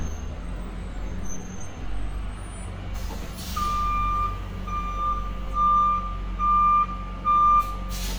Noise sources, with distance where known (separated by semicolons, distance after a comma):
reverse beeper, near